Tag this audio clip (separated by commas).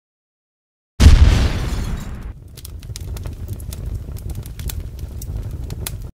Explosion, pop